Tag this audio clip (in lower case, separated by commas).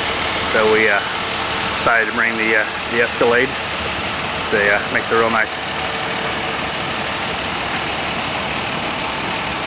speech